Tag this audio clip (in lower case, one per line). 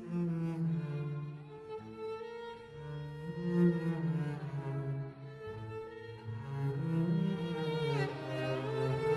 violin
string section
cello
bowed string instrument
double bass